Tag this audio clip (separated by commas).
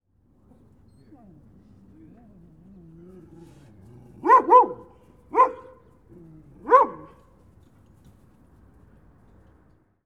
pets, Bark, Animal, Dog